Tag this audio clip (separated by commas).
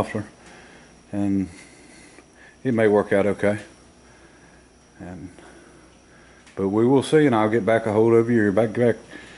Speech, inside a large room or hall